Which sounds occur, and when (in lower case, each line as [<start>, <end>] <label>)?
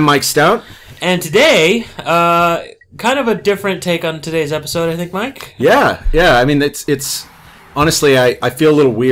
[0.00, 0.61] man speaking
[0.00, 9.11] conversation
[0.00, 9.11] video game sound
[0.22, 2.87] sound effect
[0.54, 0.99] breathing
[0.99, 1.79] man speaking
[1.98, 2.70] man speaking
[2.96, 5.99] man speaking
[3.31, 3.43] sound effect
[6.10, 7.25] man speaking
[7.00, 7.73] cheering
[7.73, 9.11] man speaking